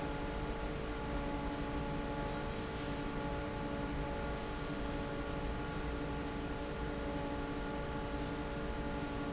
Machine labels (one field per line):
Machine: fan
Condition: normal